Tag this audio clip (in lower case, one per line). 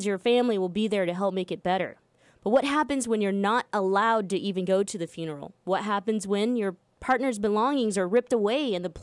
speech